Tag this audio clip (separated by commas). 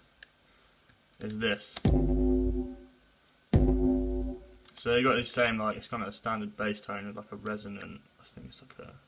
Speech